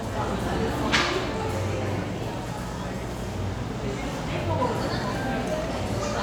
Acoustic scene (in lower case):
cafe